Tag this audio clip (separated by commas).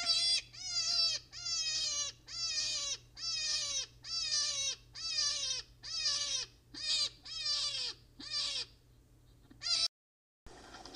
Animal